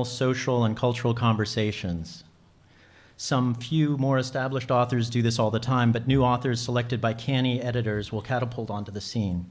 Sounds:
speech

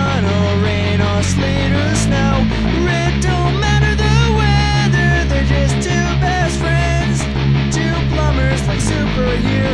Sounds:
music
exciting music

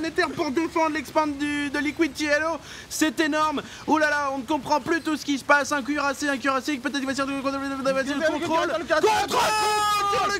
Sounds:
speech

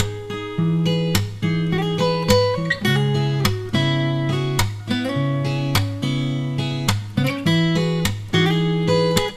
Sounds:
music
guitar
musical instrument
plucked string instrument

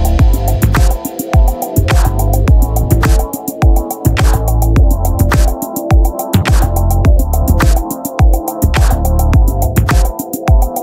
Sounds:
music

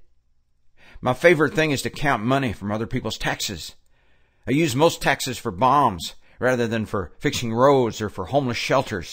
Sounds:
speech
man speaking

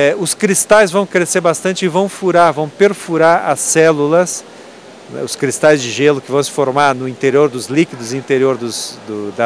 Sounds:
speech

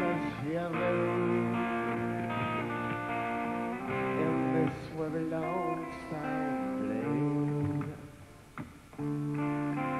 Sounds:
music

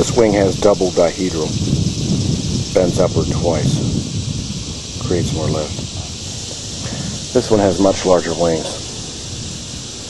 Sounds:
speech

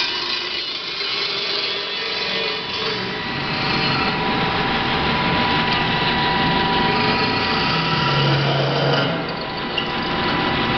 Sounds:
lathe spinning

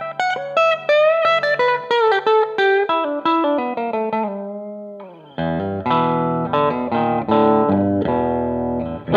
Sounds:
music
musical instrument
inside a small room
plucked string instrument
guitar

